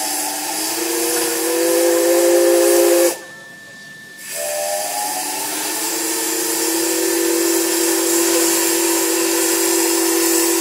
A loud airy hiss from a steam whistle